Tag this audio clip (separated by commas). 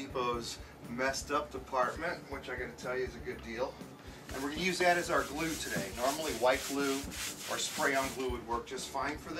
Speech